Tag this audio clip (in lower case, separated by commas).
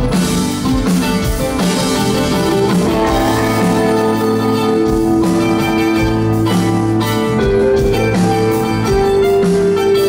music, rhythm and blues